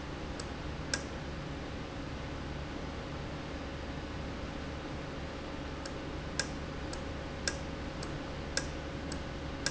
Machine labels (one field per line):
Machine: valve